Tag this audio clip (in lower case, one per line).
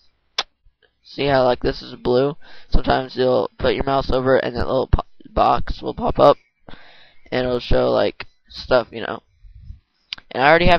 speech